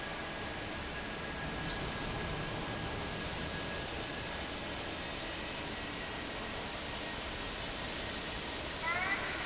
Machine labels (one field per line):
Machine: fan